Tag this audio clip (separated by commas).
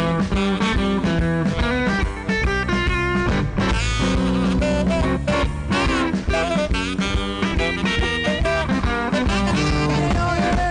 Music, Guitar, Musical instrument